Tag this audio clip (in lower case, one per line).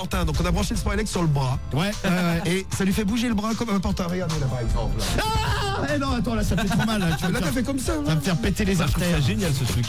speech
music
radio